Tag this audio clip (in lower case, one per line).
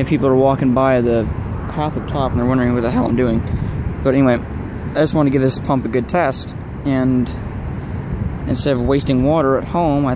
speech